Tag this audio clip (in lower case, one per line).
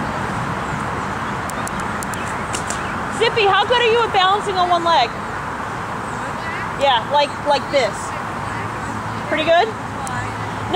speech